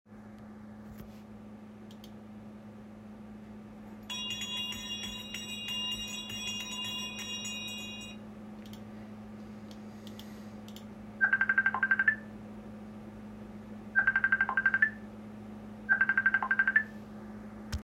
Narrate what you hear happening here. I was on my computer and a bell rang. Then after that my phone started ringing.